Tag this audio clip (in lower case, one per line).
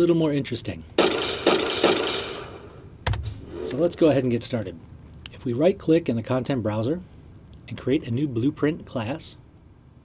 speech